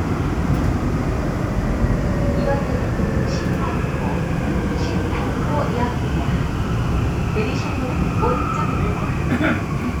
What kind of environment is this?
subway train